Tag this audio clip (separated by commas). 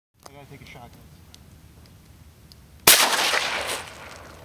Speech